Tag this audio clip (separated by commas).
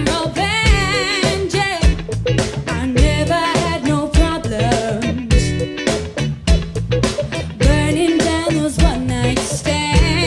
Music, Happy music, Jazz